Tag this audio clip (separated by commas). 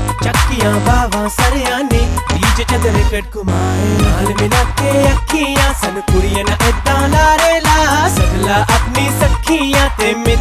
Music